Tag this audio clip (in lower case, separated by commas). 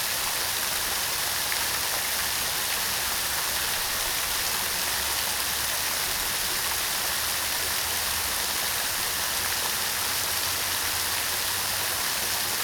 water, rain